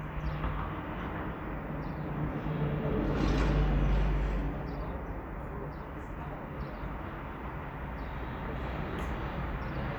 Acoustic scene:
residential area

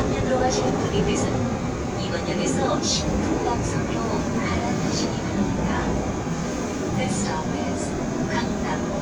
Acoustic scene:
subway train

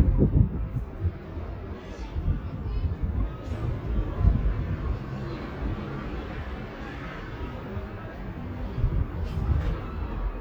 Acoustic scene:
residential area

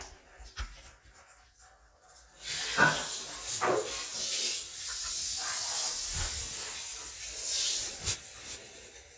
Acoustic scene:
restroom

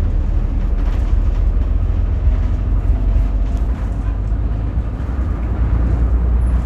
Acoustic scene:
bus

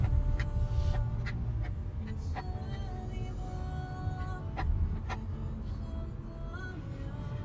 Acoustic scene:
car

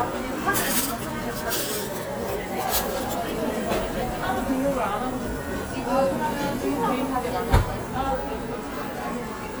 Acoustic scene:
cafe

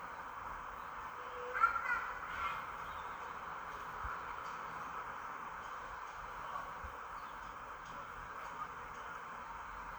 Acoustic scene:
park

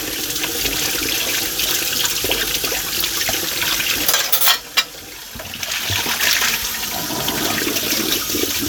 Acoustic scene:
kitchen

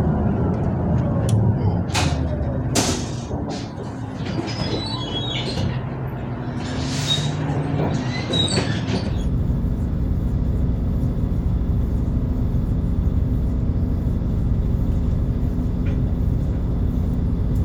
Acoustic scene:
bus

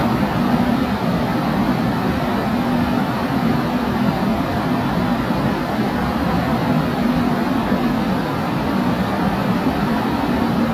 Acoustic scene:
subway station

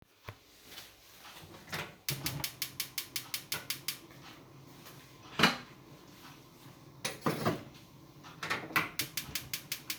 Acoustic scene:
kitchen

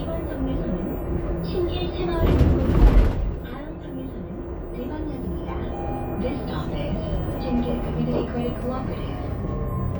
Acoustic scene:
bus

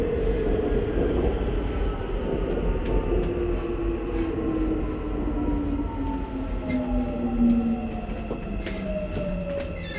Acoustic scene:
subway train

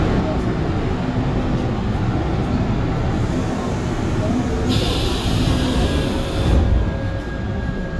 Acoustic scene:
subway train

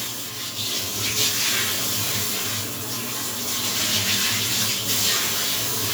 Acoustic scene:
restroom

